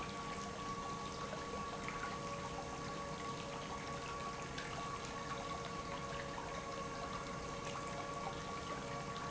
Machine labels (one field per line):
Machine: pump